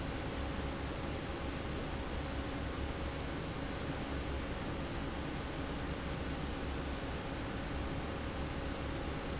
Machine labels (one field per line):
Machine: fan